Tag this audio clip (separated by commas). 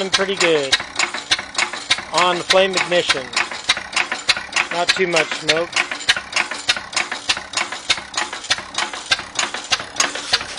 Speech, Engine